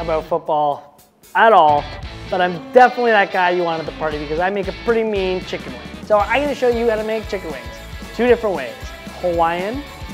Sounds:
music
speech

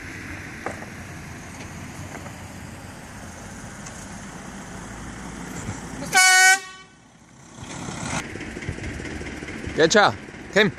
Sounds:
car horn

